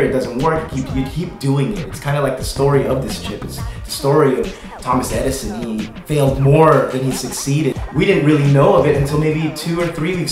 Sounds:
Music, Speech

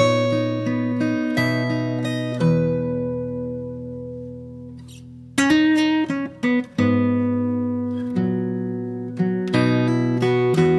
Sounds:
Plucked string instrument, Music, Acoustic guitar, Musical instrument

